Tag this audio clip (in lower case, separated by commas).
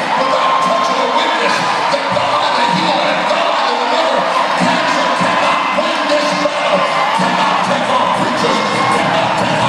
cheering, crowd